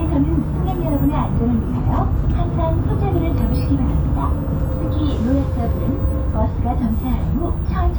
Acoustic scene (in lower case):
bus